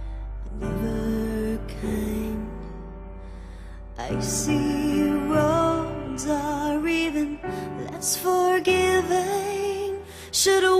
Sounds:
music, new-age music, soul music

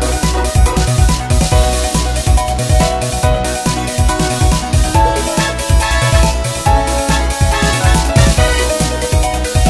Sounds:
music

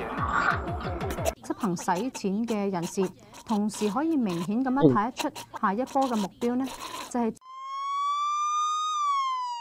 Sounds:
music, speech

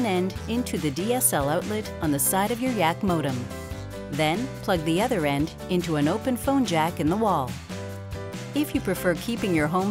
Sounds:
speech, music

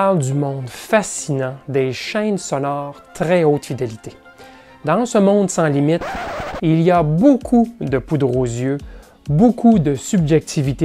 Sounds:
speech, music

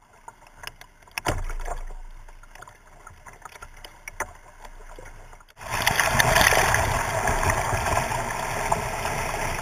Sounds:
boat, canoe, vehicle, rowboat

